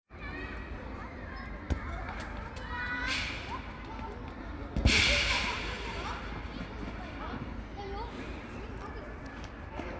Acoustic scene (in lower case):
park